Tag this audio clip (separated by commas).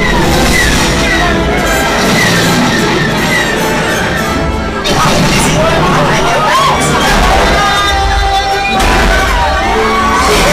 Music, Yell, Speech